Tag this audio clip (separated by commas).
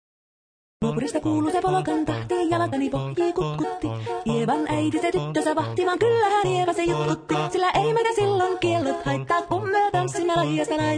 Music